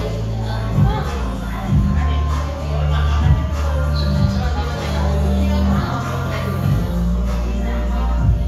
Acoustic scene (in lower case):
cafe